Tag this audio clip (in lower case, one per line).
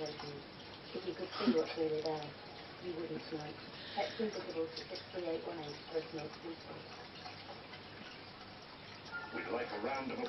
speech